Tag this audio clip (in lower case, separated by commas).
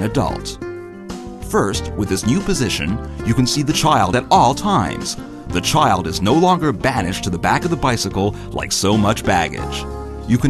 speech, music